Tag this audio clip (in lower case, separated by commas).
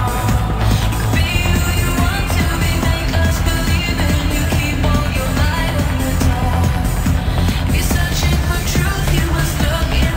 electronic music, music, dance music, trance music